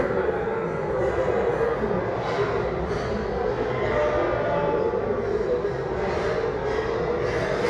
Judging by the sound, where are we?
in a restaurant